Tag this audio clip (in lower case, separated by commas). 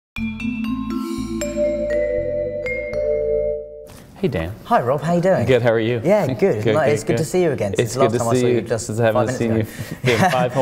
inside a large room or hall, xylophone, music, speech